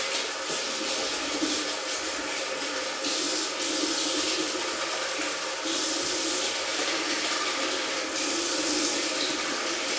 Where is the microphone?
in a restroom